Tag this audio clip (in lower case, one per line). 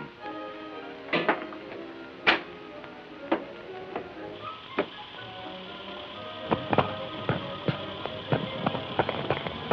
inside a small room
music